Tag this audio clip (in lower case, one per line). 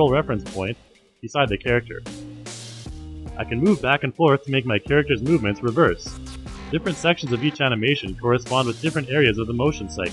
speech
music